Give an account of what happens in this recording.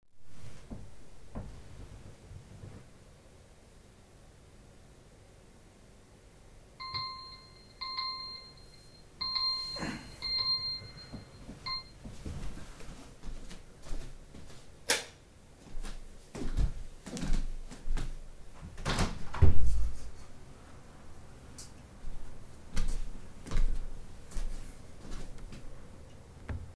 I turned in bed my phone alarm started ringing I stopped it then stood up turned the light switch on walked to the window opened it then walked to my desk